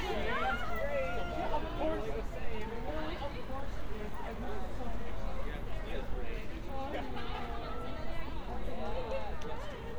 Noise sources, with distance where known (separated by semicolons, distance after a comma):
person or small group shouting